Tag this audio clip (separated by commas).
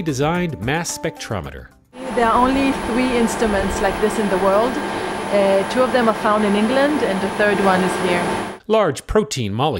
Music, Speech